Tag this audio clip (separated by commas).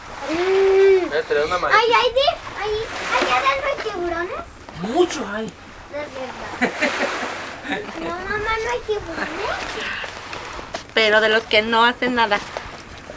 Vehicle, Boat